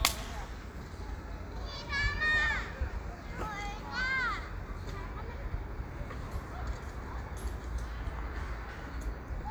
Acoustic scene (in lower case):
park